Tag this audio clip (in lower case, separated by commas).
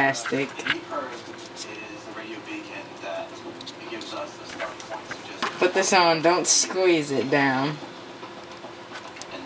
speech